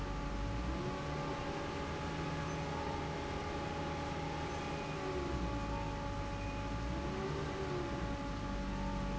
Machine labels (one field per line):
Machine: fan